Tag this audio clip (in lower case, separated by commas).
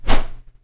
swish